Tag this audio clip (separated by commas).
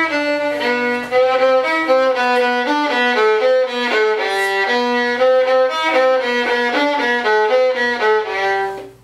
Musical instrument, Violin, Music